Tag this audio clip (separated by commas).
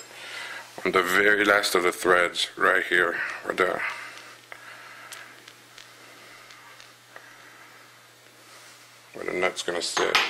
Speech